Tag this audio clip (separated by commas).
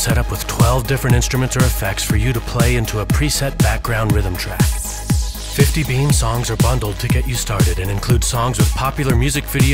Speech, Music